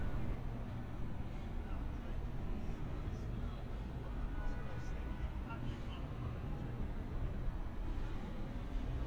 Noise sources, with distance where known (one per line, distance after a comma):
car horn, far
person or small group talking